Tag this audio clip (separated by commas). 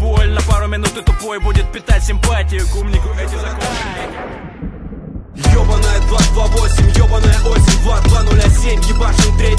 Music